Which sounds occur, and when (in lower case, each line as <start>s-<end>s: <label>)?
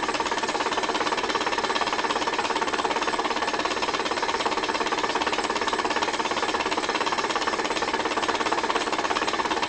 0.0s-9.6s: gears
0.0s-9.6s: mechanisms